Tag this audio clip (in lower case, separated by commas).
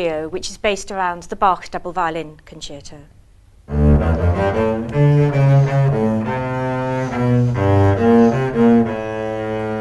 playing double bass